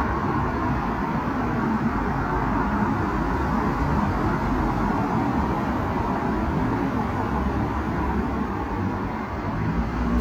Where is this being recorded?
on a street